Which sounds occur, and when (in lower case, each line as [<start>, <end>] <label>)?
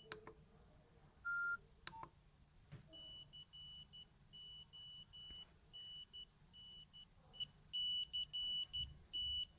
[0.00, 0.09] ringtone
[0.00, 9.55] background noise
[0.07, 0.33] clicking
[1.19, 1.62] beep
[1.85, 2.12] clicking
[2.67, 2.91] thump
[2.88, 4.05] ringtone
[4.25, 5.52] ringtone
[5.26, 5.41] generic impact sounds
[5.68, 6.28] ringtone
[6.53, 7.10] ringtone
[7.14, 7.37] generic impact sounds
[7.34, 7.62] ringtone
[7.72, 8.91] ringtone
[9.09, 9.55] ringtone